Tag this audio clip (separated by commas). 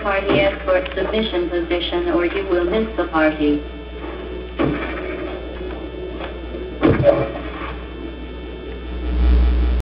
Speech